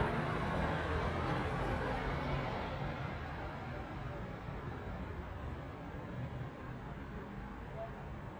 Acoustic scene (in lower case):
residential area